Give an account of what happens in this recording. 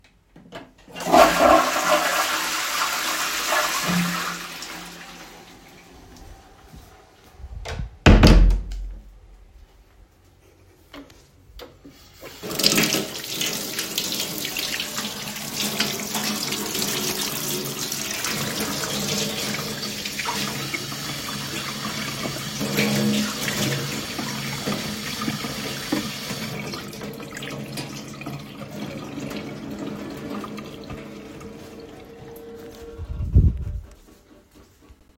I flushed the toilet and closed the door. Then I washed my hands over a metal sink.